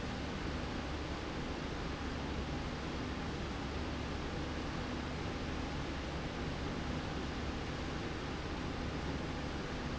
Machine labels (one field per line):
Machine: slide rail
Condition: normal